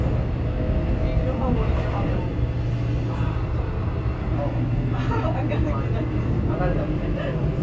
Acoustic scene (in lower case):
subway train